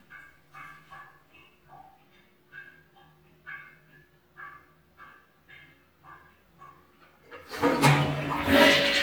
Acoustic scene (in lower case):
restroom